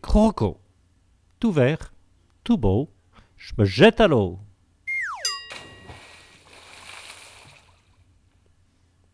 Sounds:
Speech

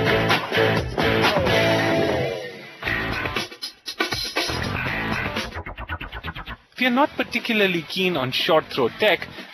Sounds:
inside a small room, Speech, Music

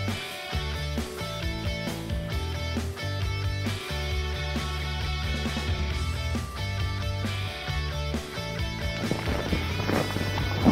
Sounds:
Music

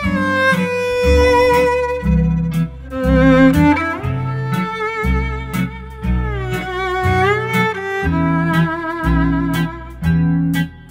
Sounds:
Musical instrument, Violin, Music

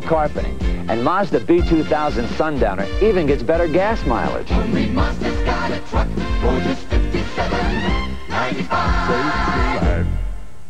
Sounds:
Speech, Music

